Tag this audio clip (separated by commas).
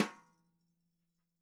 Percussion, Musical instrument, Music, Drum